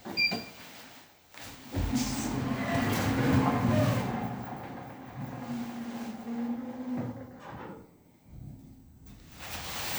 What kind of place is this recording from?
elevator